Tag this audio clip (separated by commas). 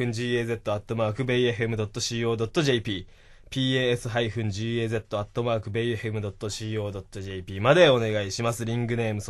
Speech